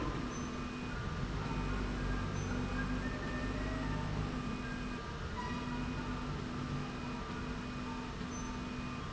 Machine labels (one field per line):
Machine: slide rail